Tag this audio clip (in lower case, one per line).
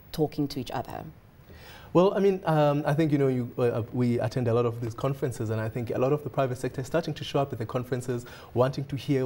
inside a small room
speech